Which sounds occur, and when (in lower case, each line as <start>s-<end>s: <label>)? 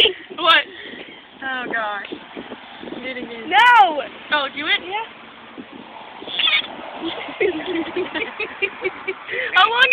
0.0s-0.2s: female speech
0.0s-1.1s: wind noise (microphone)
0.0s-9.9s: background noise
0.0s-9.9s: conversation
0.0s-9.9s: motor vehicle (road)
0.3s-0.7s: female speech
0.7s-1.3s: breathing
1.4s-2.0s: female speech
2.0s-3.4s: wind noise (microphone)
3.0s-4.1s: female speech
3.8s-4.3s: wind noise (microphone)
4.3s-5.1s: female speech
5.5s-6.5s: wind noise (microphone)
6.3s-6.7s: bleat
7.0s-9.5s: giggle
9.2s-9.9s: female speech